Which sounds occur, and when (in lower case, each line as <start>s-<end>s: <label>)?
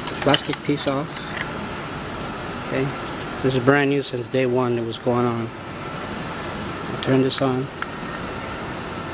0.0s-9.1s: background noise
0.2s-1.0s: generic impact sounds
0.2s-1.3s: man speaking
2.5s-2.9s: man speaking
3.4s-5.5s: man speaking
6.9s-7.7s: man speaking
7.2s-7.8s: generic impact sounds